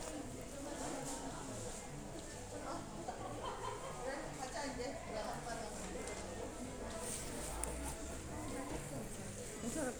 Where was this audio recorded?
in a crowded indoor space